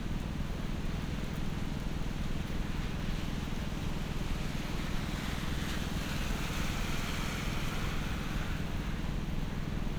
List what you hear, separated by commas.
jackhammer